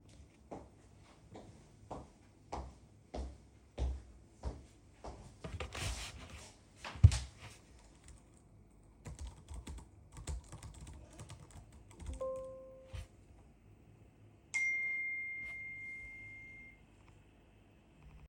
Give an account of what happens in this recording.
I walk into the room,sit on the chair,start typing on my keyboard and then i get a notification on my phone.